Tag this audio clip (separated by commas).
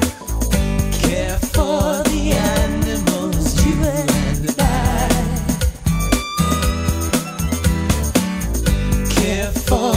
Music